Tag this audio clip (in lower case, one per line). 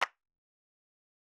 clapping
hands